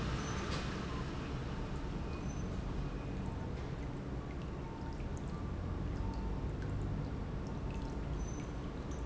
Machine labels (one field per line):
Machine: pump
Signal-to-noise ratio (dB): -6 dB